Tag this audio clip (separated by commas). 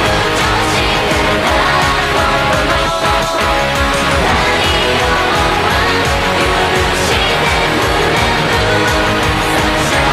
Musical instrument, Music, Plucked string instrument, Strum, playing electric guitar, Electric guitar